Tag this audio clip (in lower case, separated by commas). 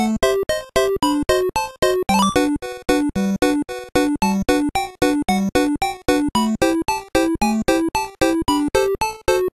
background music, music